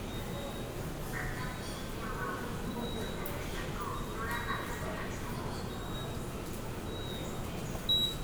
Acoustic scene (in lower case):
subway station